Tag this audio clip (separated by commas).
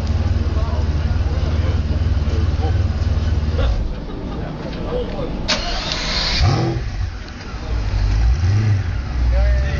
vroom, Car, Vehicle, Speech